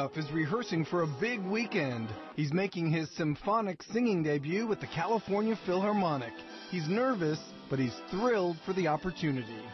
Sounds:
music, speech

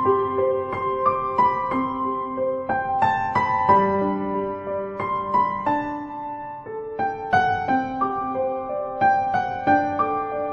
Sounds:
tender music, music

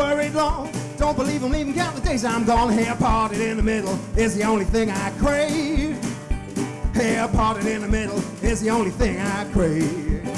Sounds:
blues, music

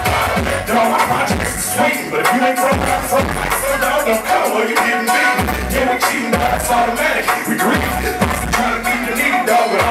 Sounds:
music

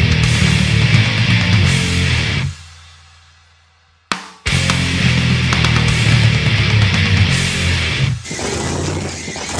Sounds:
music

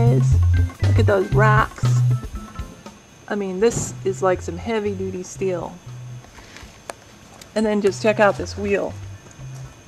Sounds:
music, speech

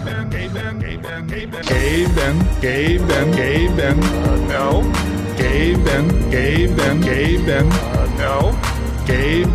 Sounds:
music

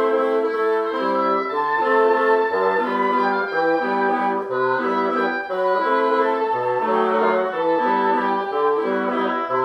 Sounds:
saxophone, brass instrument

